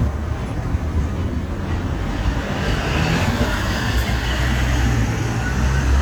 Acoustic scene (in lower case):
street